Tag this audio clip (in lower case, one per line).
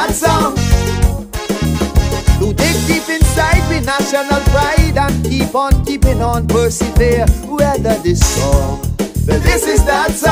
rhythm and blues
disco
music